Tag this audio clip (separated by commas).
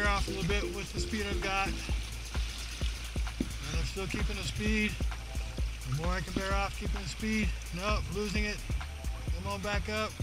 Water vehicle, Vehicle, Speech, Music